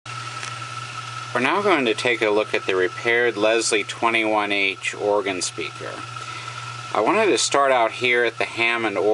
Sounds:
Speech

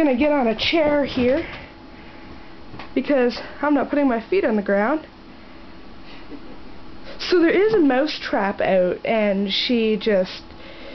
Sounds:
Speech

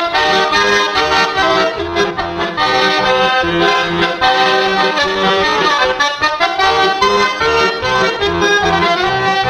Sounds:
Music

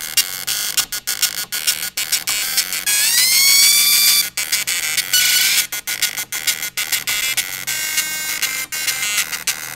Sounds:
Printer

